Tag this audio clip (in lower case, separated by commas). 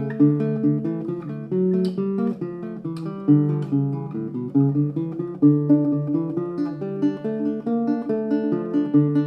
plucked string instrument, musical instrument, music, guitar